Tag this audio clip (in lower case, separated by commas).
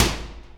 microwave oven, home sounds